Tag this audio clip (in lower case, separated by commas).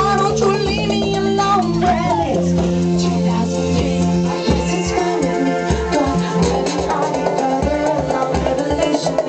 music